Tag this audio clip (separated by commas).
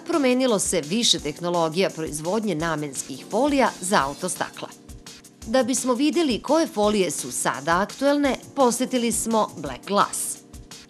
Music, Speech